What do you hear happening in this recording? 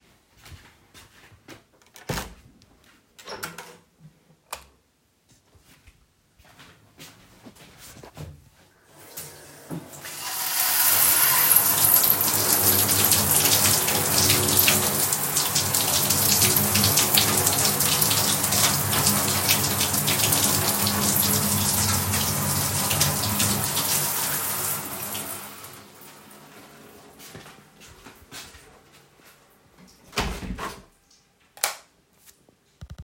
I walked into the bathroom I opened the door then I turned the light on and turned on the tap water. After turning it off I turned the light off then opened and closed the bathroom door.